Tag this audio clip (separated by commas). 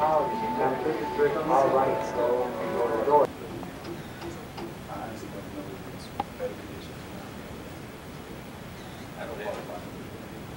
Speech